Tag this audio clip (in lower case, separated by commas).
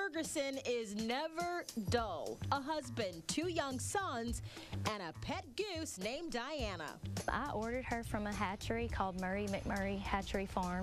speech, music